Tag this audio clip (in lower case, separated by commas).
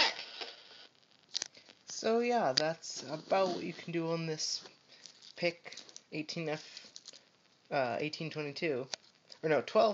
speech